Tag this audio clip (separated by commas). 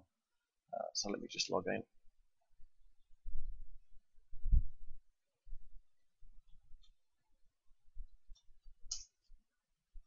Speech